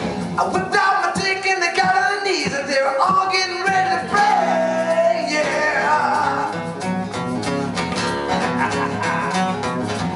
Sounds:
music

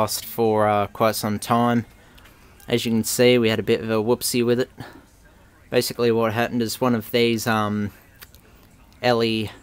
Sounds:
speech

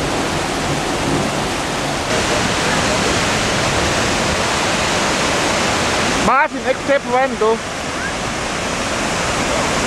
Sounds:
speech
waterfall
waterfall burbling

